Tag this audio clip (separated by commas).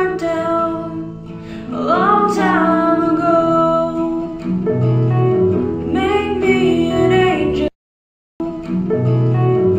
Female singing, Music